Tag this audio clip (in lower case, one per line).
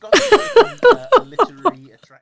laughter
giggle
human voice